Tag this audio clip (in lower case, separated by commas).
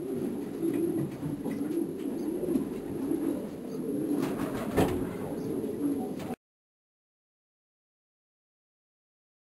bird, coo